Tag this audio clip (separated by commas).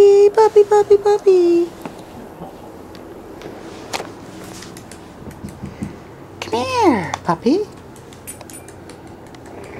Dog, Domestic animals, Speech